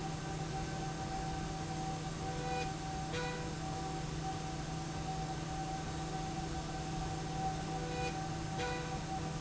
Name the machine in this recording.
slide rail